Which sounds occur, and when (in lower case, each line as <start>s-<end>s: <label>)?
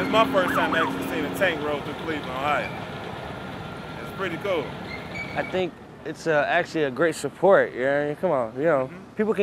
0.0s-0.2s: squeal
0.0s-9.4s: motor vehicle (road)
0.1s-2.8s: man speaking
0.4s-0.9s: emergency vehicle
2.2s-2.4s: generic impact sounds
2.6s-2.8s: squeal
3.9s-4.7s: man speaking
4.9s-5.5s: squeal
5.3s-5.7s: man speaking
6.0s-7.2s: man speaking
7.4s-8.1s: man speaking
8.2s-8.9s: man speaking
8.9s-9.1s: human voice